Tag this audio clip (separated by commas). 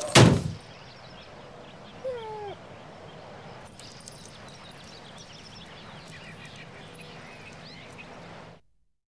Animal